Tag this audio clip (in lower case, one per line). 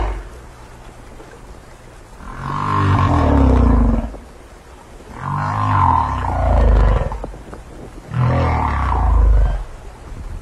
whale calling